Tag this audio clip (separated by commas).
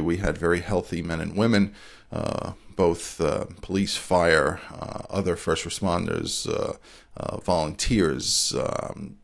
Speech